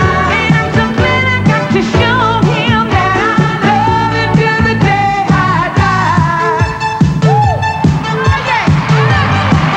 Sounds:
pop music, music, singing

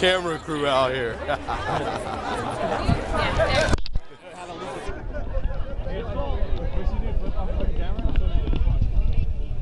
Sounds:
speech

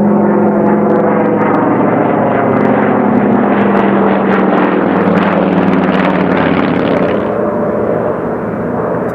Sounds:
airplane flyby

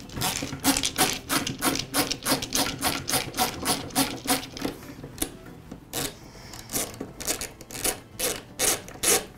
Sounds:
music, tools

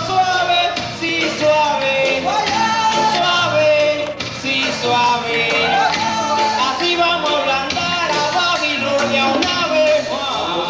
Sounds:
music

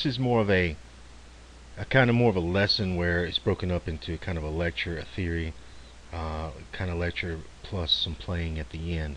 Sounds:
speech

